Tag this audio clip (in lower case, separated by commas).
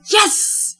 human voice, woman speaking, speech